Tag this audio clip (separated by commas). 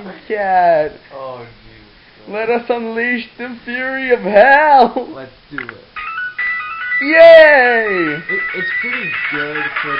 Music, Speech